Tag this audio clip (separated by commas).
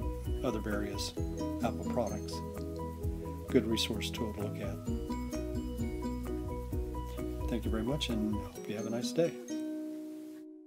Music, Speech